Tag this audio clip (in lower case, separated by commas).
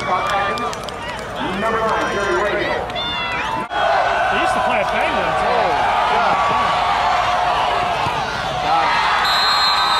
speech